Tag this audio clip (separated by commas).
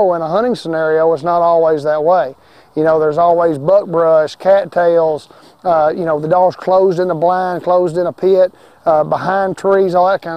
Speech